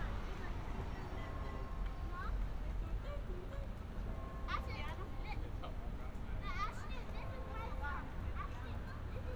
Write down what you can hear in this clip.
person or small group talking